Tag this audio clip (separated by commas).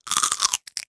Chewing